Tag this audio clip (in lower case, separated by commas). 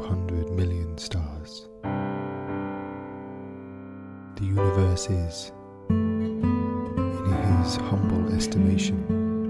speech, music